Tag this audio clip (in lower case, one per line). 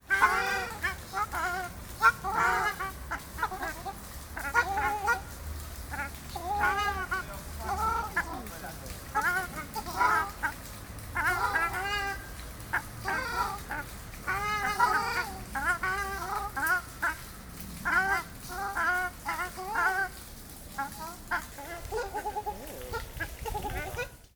fowl
animal
livestock